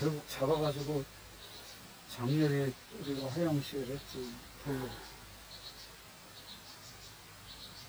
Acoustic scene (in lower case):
park